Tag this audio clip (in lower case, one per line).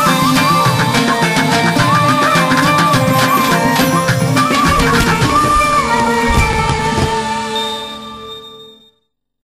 music
independent music